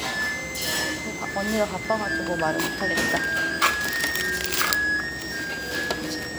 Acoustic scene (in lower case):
restaurant